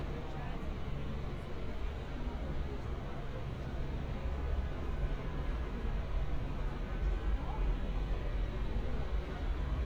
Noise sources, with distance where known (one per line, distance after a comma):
engine of unclear size, far
car horn, far
person or small group talking